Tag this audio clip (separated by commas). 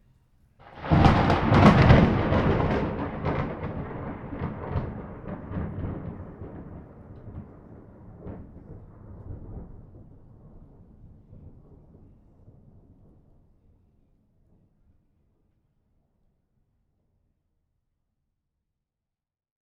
Thunder, Thunderstorm